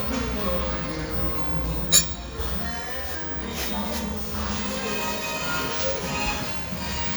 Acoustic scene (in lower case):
restaurant